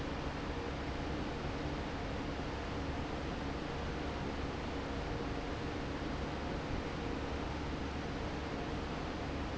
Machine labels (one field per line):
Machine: fan